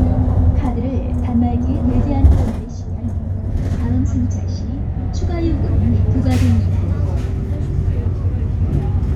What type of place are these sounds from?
bus